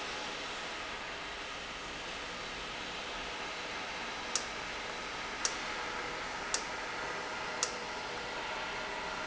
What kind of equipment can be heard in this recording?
valve